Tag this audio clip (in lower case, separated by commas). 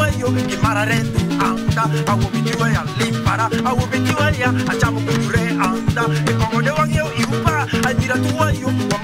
music, male singing